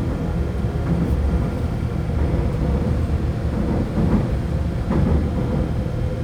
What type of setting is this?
subway train